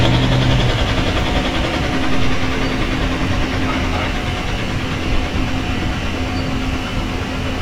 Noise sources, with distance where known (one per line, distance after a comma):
unidentified impact machinery, near